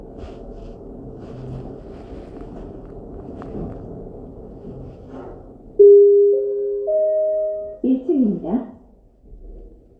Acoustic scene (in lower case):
elevator